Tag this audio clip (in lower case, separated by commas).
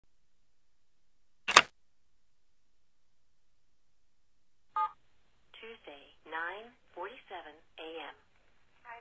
speech